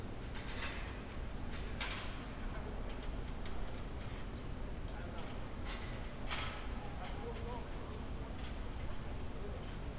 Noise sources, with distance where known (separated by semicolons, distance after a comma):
background noise